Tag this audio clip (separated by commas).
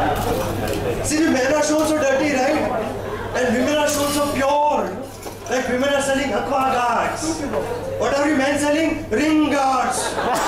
Speech